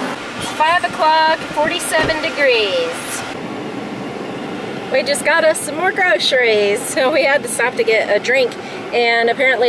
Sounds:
Speech

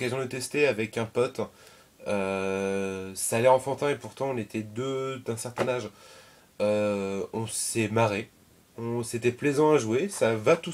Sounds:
Speech

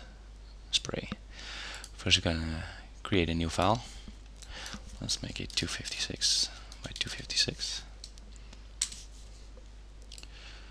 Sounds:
Speech

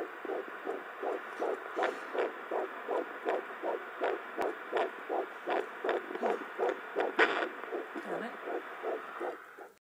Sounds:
Speech

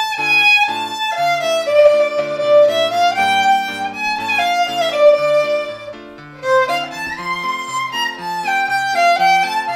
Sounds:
Violin, fiddle, Music, Musical instrument

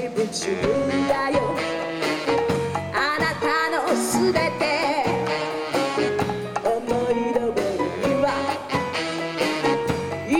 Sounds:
Singing, Orchestra, Music

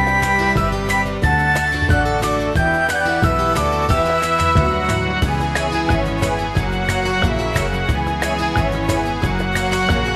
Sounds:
Video game music, Music

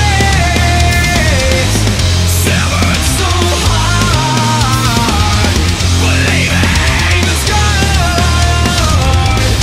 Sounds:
Music, Exciting music

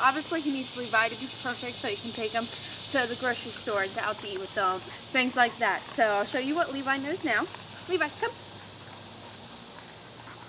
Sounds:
Speech

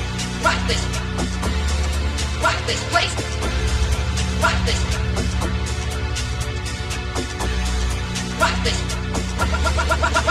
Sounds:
Music

